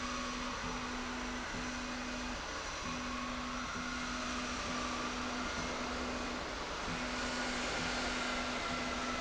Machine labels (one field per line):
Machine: slide rail